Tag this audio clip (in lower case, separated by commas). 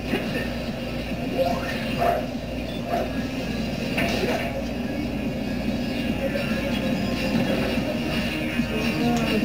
music, speech